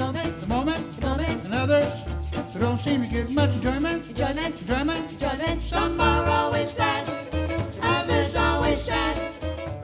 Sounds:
music, speech

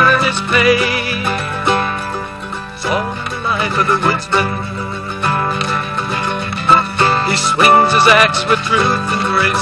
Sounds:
music

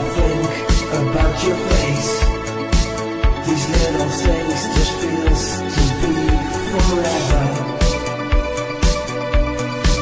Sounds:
music, electronic music, disco

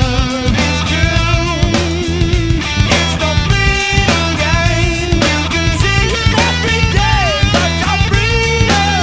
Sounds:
music, progressive rock

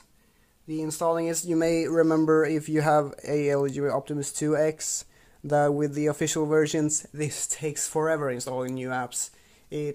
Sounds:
speech, inside a small room

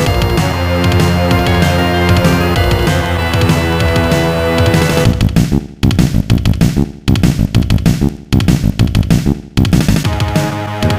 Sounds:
music

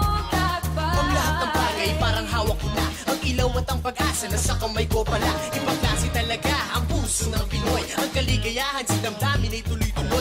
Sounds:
dance music, music

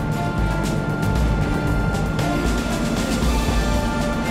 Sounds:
music

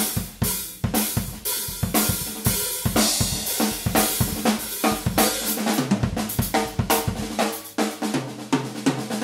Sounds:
musical instrument, drum, bass drum, hi-hat, cymbal, music, snare drum, drum kit, playing drum kit

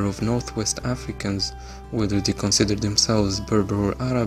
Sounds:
music, speech

